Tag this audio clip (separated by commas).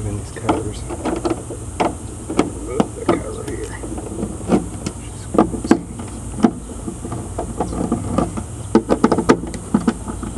Speech